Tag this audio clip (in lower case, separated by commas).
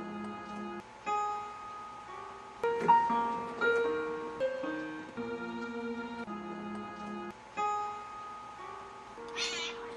harpsichord, music, animal, cat, meow